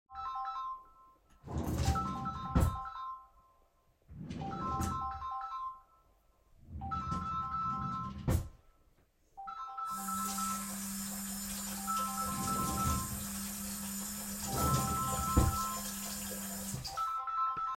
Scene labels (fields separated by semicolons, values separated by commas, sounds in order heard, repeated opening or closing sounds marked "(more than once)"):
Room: kitchen; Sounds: phone ringing, wardrobe or drawer (more than once), running water